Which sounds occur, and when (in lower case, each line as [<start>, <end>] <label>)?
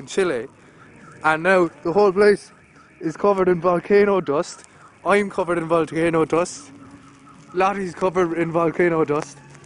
[0.00, 0.46] male speech
[0.00, 9.65] background noise
[0.71, 9.49] car alarm
[1.20, 1.65] male speech
[1.82, 2.38] male speech
[2.93, 4.50] male speech
[5.03, 6.68] male speech
[7.56, 9.34] male speech